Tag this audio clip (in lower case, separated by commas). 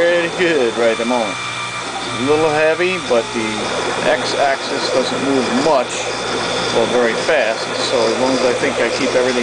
speech, power tool, tools